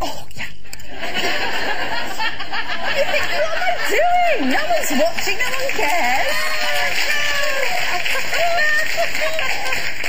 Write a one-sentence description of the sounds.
Laughter, woman speaking, giggle, laughing